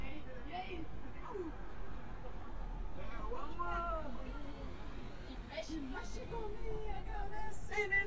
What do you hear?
person or small group talking, person or small group shouting